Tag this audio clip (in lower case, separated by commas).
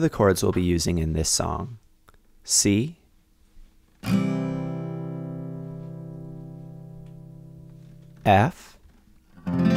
music, speech